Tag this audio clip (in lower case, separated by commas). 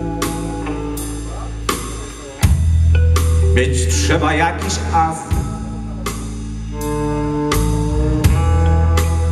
musical instrument, music, guitar, electric guitar, plucked string instrument